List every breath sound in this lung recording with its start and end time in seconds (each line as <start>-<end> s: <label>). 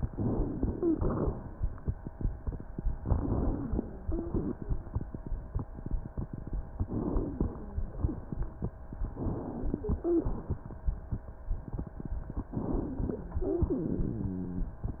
0.07-0.86 s: inhalation
0.65-1.00 s: wheeze
0.86-1.57 s: exhalation
3.02-3.93 s: inhalation
3.49-4.36 s: wheeze
3.93-4.59 s: exhalation
6.87-7.72 s: inhalation
7.11-7.97 s: wheeze
9.18-9.85 s: inhalation
9.88-10.40 s: wheeze
9.88-10.64 s: exhalation
12.56-13.38 s: inhalation
13.36-13.87 s: wheeze
13.66-14.48 s: exhalation